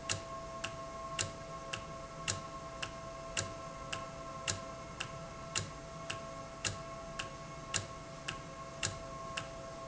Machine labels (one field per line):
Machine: valve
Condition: normal